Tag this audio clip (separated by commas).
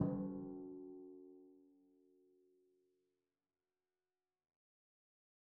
Percussion, Musical instrument, Music, Drum